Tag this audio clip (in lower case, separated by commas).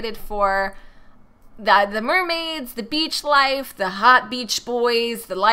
speech